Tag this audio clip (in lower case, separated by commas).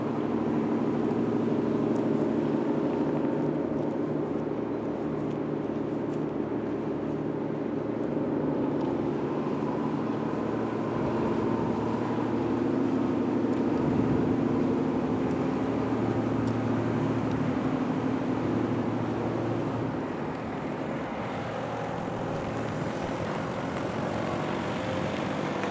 vehicle, boat